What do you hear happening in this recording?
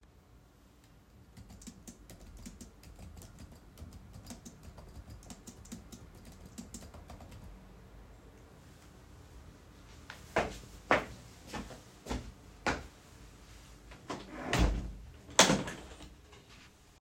I started typing on my keyboard, then stood up, went to the window and closed it.